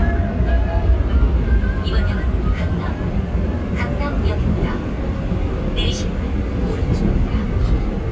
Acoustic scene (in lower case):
subway train